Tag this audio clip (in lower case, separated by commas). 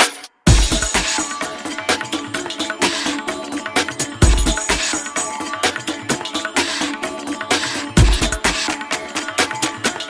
music